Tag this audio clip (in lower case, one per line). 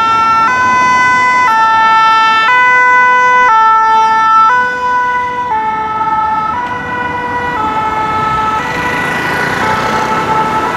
fire truck siren